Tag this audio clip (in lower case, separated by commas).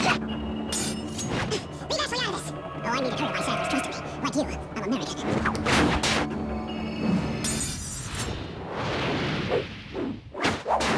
music, speech